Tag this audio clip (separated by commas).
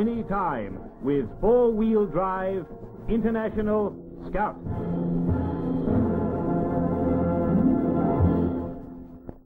Music, Speech